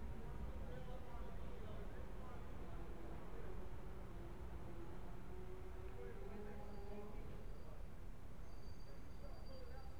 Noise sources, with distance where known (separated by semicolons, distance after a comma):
background noise